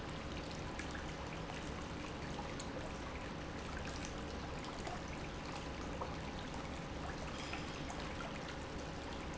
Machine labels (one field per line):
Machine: pump